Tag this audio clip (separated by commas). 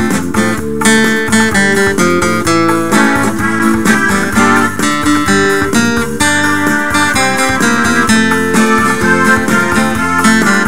Music